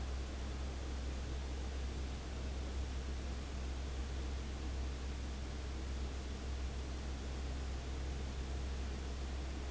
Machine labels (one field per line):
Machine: fan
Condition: abnormal